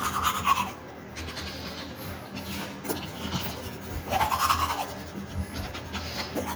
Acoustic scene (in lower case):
restroom